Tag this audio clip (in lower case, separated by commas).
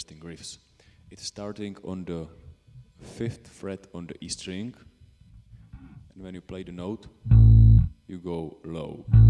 music, plucked string instrument, musical instrument, guitar, inside a small room, electronic tuner, speech, bass guitar